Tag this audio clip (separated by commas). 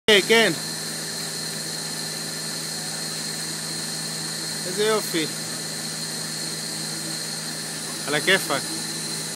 Speech